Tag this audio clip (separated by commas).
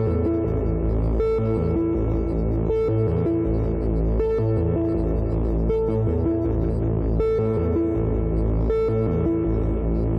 Music, Sampler